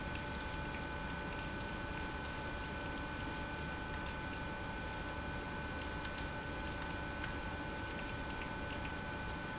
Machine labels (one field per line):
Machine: pump